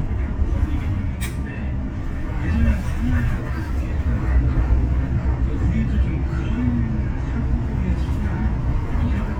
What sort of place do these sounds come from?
bus